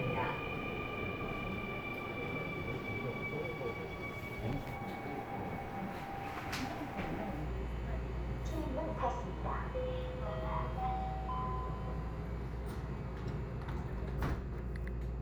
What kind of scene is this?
subway train